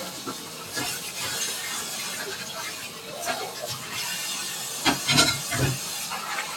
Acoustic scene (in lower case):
kitchen